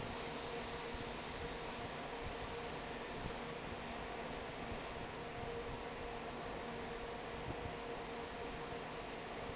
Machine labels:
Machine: fan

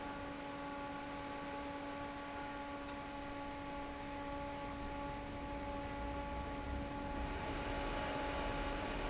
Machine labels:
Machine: fan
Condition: normal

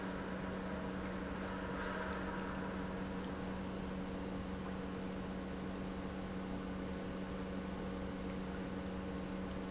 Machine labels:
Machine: pump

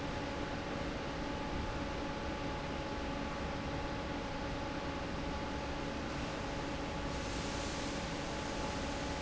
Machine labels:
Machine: fan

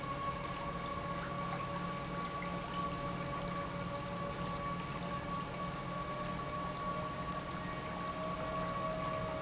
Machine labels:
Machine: pump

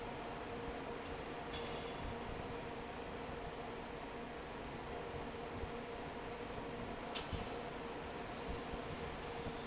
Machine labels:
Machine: fan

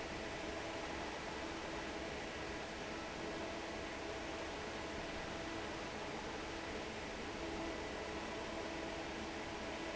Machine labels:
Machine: fan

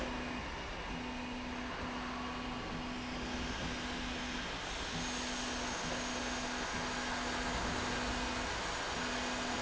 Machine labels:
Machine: slide rail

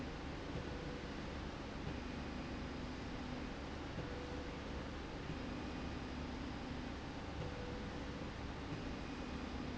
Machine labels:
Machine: slide rail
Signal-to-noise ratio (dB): 0 dB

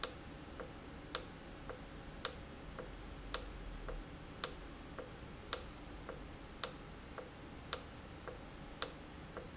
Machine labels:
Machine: valve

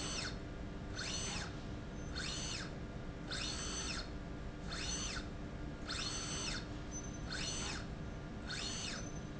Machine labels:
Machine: slide rail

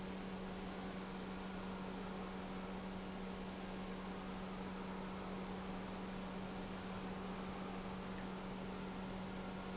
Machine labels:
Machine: pump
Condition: normal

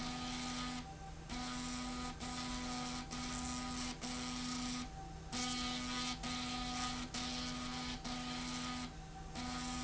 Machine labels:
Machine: slide rail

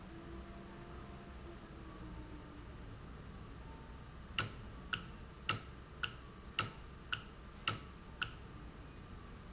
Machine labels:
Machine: valve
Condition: normal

